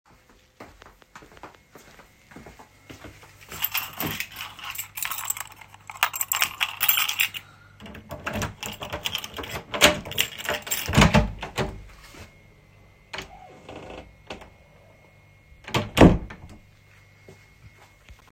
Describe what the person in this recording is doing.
I grabbed my keys from my pocket and unlocked the front door. I pushed the door open and stepped inside. Then I walked down the hallway to put my things away.